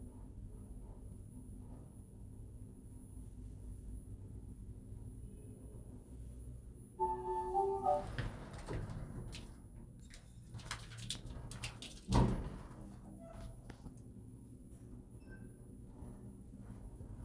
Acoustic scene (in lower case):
elevator